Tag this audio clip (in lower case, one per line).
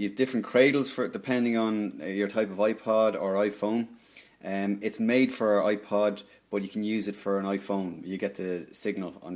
speech